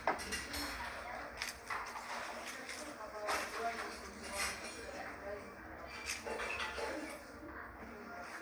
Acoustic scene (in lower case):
cafe